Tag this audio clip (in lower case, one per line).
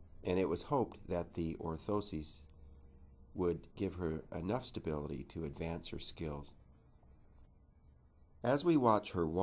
speech